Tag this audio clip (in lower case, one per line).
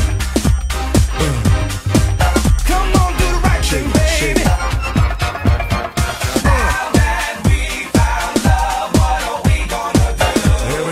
music
disco